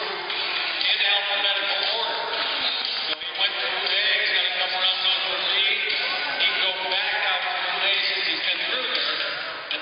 A person speaks over a microphone while people chatter in the distance